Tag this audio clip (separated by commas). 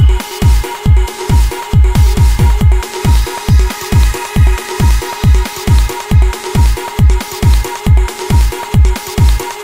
Music, Trance music